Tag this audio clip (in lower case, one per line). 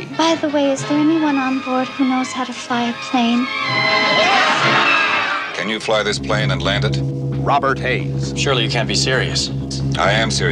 airplane